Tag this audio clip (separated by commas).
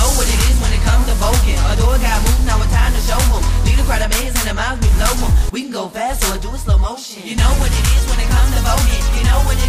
Music